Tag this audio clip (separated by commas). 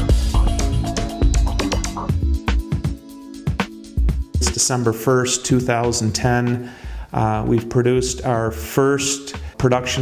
Speech, Music